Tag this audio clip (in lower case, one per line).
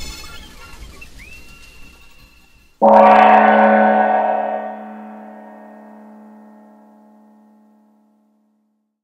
music